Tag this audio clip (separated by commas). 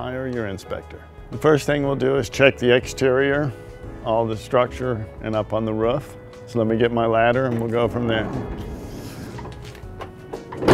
Speech, Music